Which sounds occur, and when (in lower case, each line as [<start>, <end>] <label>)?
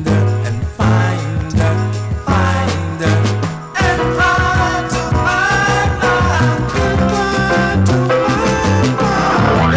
[0.00, 1.86] male singing
[0.00, 9.75] music
[2.24, 3.21] male singing
[3.72, 9.75] male singing